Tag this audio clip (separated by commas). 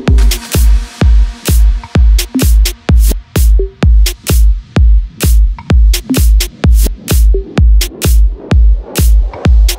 Music